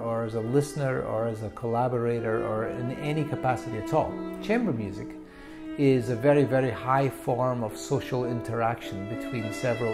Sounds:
Speech, Music

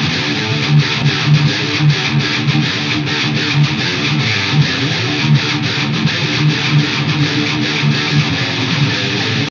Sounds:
Musical instrument, Music, Electric guitar, Guitar

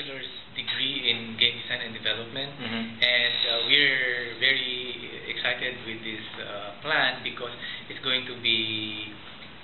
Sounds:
Speech

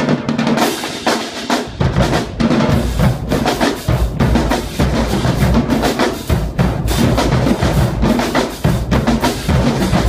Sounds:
Percussion, Music

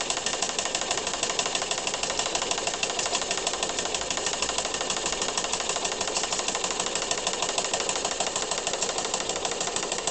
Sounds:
Idling, Engine

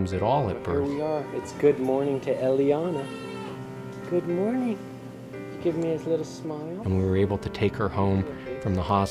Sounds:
Music, Speech

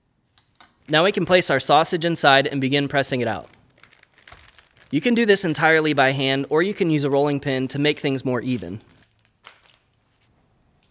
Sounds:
Speech

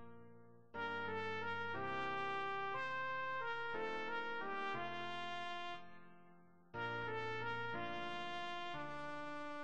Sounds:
Brass instrument, Trumpet

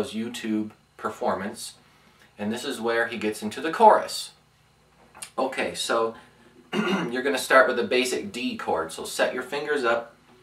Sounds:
Speech

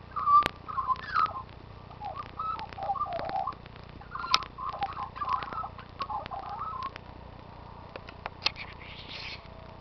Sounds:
magpie calling

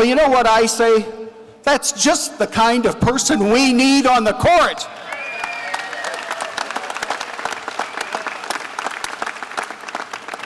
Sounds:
man speaking, Speech, Narration

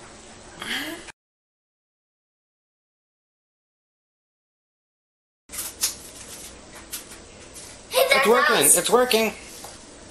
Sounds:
Speech

